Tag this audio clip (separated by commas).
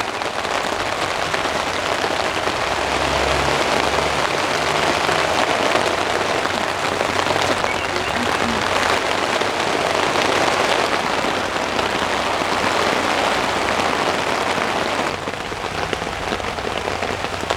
Water, Rain